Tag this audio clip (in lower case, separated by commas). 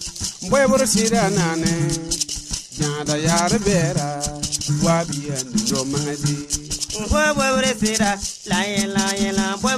folk music, music